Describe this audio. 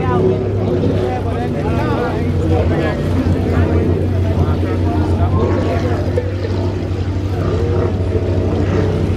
Motor boats on the water with muffled speech